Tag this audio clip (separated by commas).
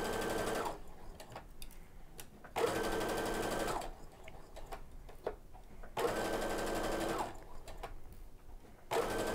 using sewing machines